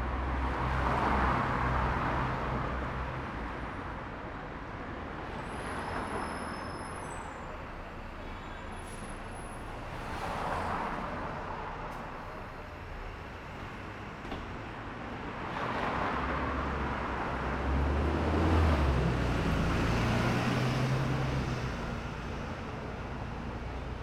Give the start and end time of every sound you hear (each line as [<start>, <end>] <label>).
[0.00, 3.80] car engine accelerating
[0.00, 8.35] car
[0.00, 8.35] car wheels rolling
[5.10, 7.52] bus brakes
[5.10, 24.02] bus
[7.85, 8.97] unclassified sound
[8.50, 9.58] bus brakes
[8.64, 9.06] bus compressor
[9.57, 11.96] bus engine idling
[9.60, 13.97] car
[9.60, 13.97] car wheels rolling
[9.90, 10.72] car engine accelerating
[11.77, 12.03] bus compressor
[12.02, 24.02] bus engine accelerating
[15.72, 20.72] car
[15.72, 20.72] car wheels rolling